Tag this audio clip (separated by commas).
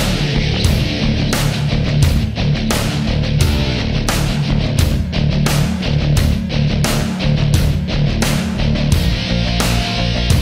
Music